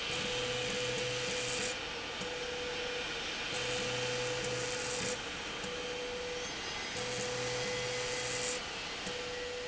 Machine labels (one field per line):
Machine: slide rail